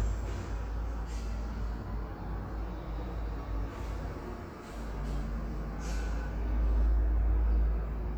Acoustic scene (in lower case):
elevator